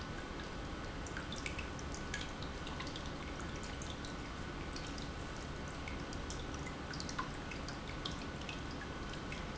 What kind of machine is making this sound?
pump